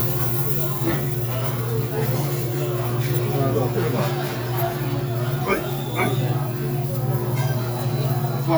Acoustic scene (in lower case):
restaurant